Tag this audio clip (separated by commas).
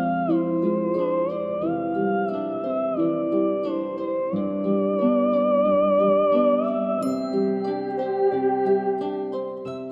Opera, Music